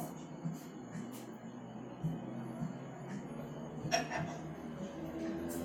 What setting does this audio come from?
cafe